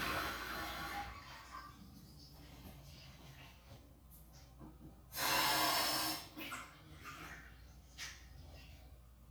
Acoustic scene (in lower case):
restroom